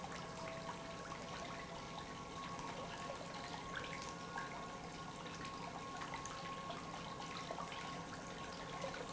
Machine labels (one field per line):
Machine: pump